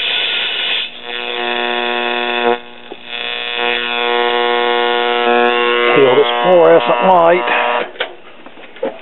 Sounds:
Speech, Radio

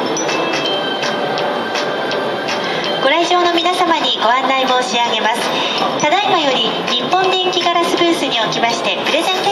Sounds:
Chink, Speech, Music

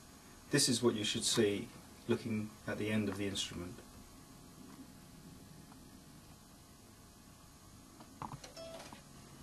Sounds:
Speech

